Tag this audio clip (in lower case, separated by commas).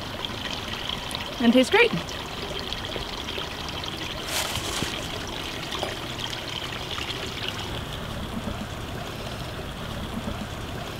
water, speech